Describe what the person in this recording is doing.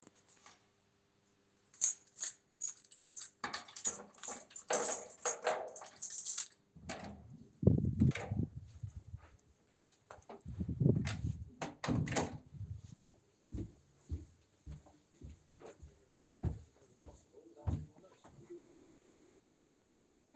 opening door closing door walking through the hallway